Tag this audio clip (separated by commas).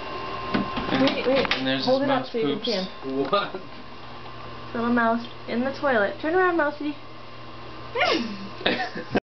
Speech